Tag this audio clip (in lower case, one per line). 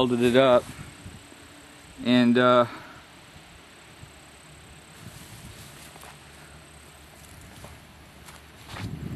speech